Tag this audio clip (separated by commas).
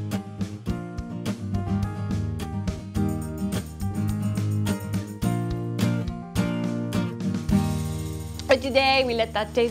Music, Speech